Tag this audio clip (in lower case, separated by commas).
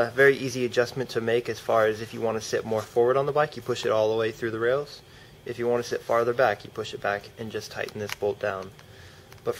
speech